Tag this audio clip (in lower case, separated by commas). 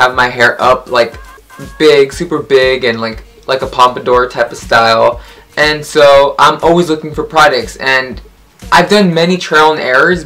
music, speech